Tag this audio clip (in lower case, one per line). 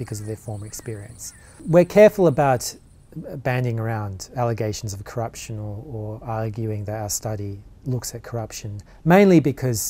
speech